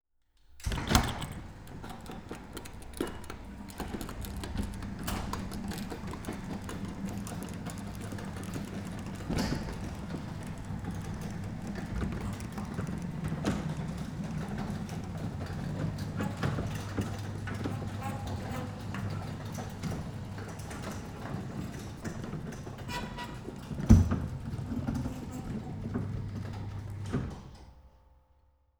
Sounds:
home sounds, Door, Sliding door

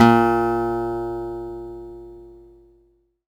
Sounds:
Plucked string instrument, Music, Acoustic guitar, Guitar, Musical instrument

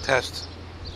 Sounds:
Bird, Animal, Wild animals, Human voice

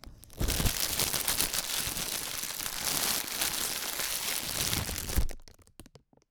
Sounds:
Crackle

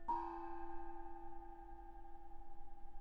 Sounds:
Percussion, Music, Musical instrument, Gong

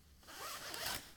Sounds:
Zipper (clothing), Domestic sounds

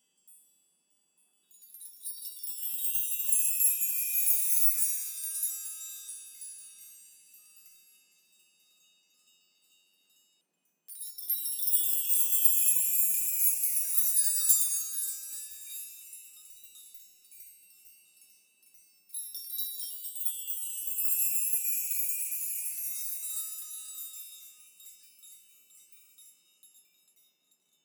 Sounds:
Bell, Chime

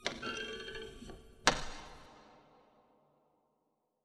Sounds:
Thump

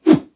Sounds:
swoosh

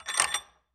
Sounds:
Tools

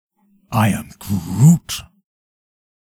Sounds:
Human voice

